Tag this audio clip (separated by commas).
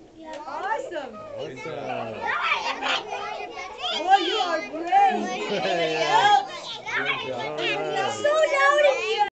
Speech, inside a large room or hall